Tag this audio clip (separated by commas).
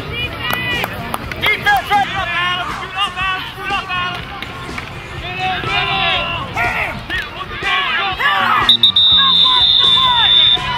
Speech, Music